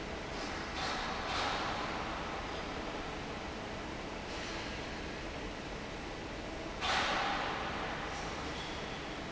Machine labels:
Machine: fan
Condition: normal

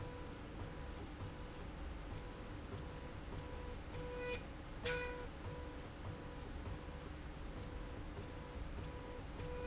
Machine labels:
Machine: slide rail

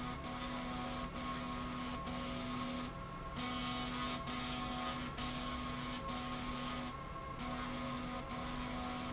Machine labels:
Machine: slide rail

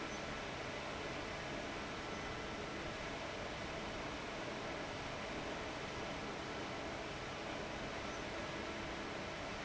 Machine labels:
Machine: fan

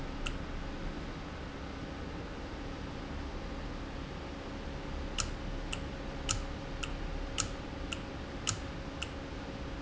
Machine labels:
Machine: valve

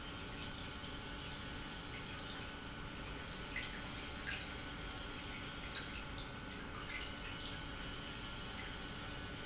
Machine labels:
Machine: pump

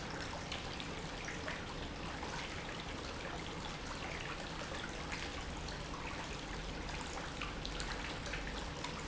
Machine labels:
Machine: pump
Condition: normal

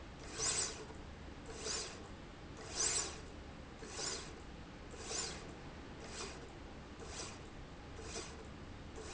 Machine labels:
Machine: slide rail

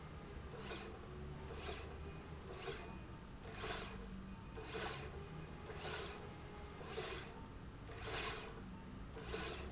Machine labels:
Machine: slide rail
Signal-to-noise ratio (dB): 6 dB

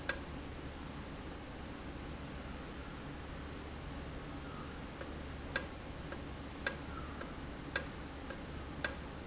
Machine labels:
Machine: valve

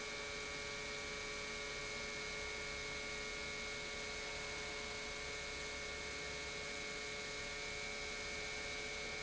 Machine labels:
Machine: pump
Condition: normal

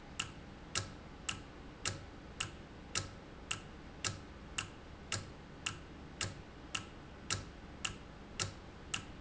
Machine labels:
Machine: valve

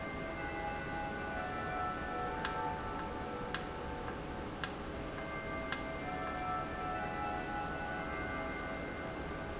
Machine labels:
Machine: valve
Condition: normal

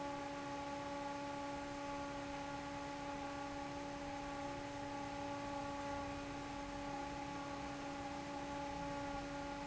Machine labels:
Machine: fan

